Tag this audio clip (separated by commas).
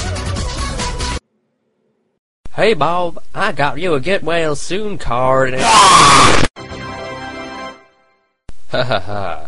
Music, Speech